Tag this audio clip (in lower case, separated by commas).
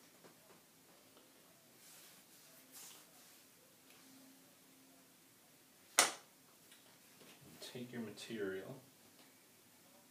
speech, inside a small room